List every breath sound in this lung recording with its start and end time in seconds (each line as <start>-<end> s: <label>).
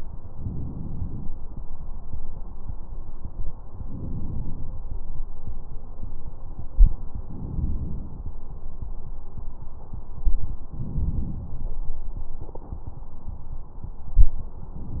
0.31-1.29 s: inhalation
3.83-4.81 s: inhalation
7.36-8.34 s: inhalation
10.70-11.68 s: inhalation